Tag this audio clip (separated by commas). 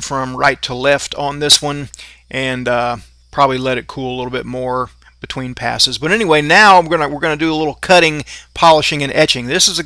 arc welding